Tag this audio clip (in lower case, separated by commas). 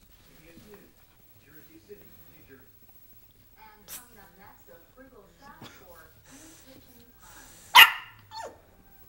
speech, bark, domestic animals, yip, dog, animal, inside a small room